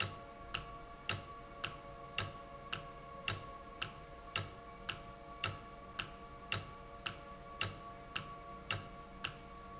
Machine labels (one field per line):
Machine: valve